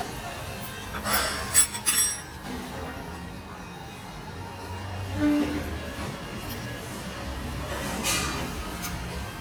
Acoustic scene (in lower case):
restaurant